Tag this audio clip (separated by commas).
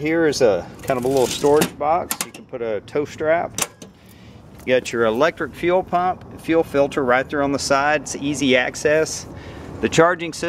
Speech, Vehicle